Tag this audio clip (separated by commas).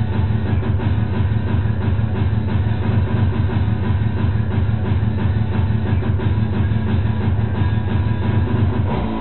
Electronic music, Music